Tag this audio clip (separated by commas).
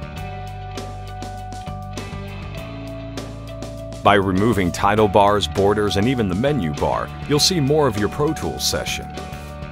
Music, Speech